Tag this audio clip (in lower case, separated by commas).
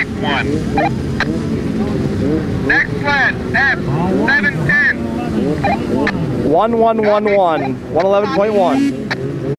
speech